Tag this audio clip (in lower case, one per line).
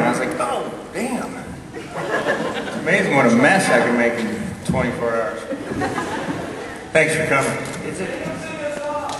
speech